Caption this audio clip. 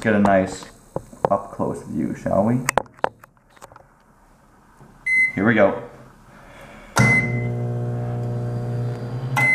A man speaks turns on a machine with beeping and vibrating noises